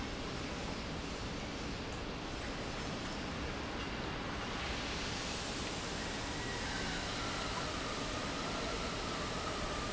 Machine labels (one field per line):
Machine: pump